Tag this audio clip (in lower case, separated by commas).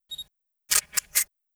mechanisms, camera